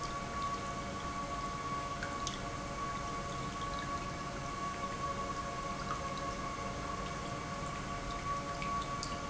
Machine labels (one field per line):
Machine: pump